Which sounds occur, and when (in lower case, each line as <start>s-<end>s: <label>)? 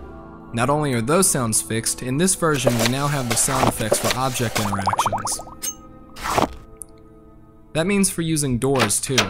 0.0s-9.2s: music
0.0s-9.2s: video game sound
0.5s-5.5s: man speaking
2.5s-5.5s: sound effect
5.6s-5.9s: generic impact sounds
6.1s-6.6s: generic impact sounds
6.7s-7.1s: drip
7.7s-9.2s: man speaking
8.7s-9.2s: generic impact sounds